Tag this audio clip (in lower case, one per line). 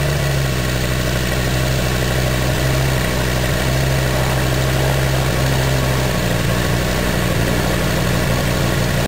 engine